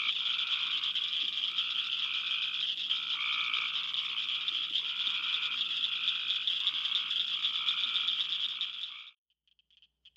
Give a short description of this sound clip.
Frogs croaking continuously